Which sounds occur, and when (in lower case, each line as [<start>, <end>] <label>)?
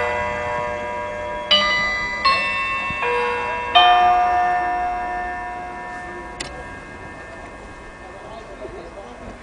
[0.00, 8.79] alarm clock
[0.00, 9.42] background noise
[6.34, 6.56] generic impact sounds
[7.99, 9.42] hubbub